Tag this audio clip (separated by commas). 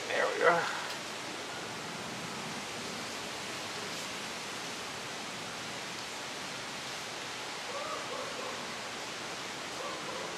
Speech, Pink noise, outside, rural or natural